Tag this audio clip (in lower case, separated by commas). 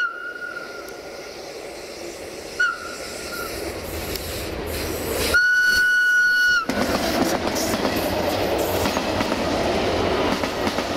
train whistling